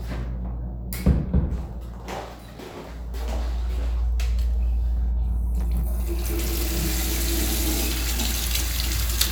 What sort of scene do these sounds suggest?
restroom